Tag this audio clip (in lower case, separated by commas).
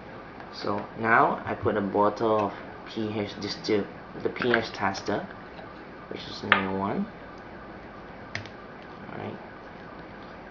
speech, inside a small room